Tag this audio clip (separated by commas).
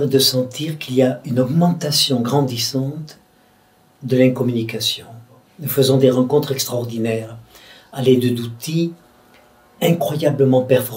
Speech